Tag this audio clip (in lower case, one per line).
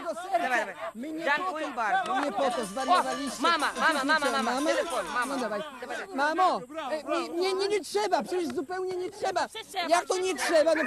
music
speech